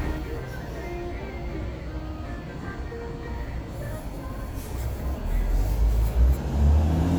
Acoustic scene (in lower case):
street